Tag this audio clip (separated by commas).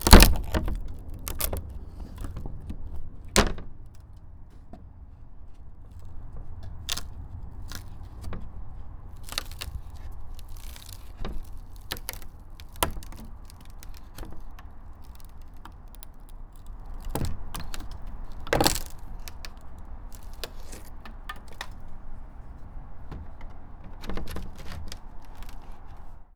Wood